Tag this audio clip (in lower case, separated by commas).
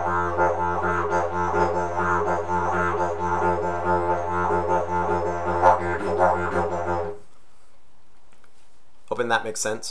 playing didgeridoo